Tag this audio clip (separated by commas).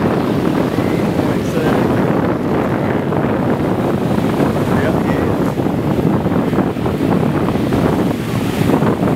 Speech